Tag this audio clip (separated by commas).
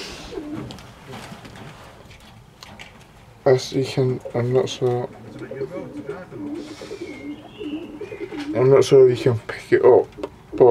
Speech, Bird, dove